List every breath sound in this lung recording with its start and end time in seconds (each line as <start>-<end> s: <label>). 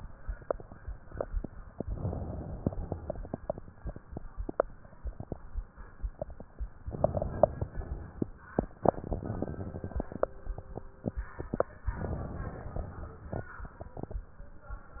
1.81-2.65 s: inhalation
2.65-3.66 s: exhalation
6.85-7.66 s: inhalation
7.66-8.28 s: exhalation
11.92-12.77 s: inhalation
12.77-13.63 s: exhalation